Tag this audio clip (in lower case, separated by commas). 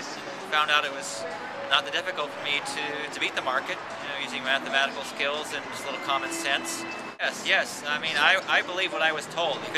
speech, music